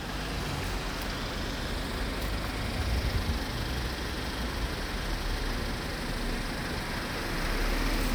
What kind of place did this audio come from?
residential area